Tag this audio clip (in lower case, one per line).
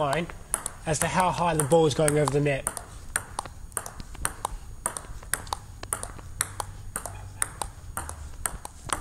playing table tennis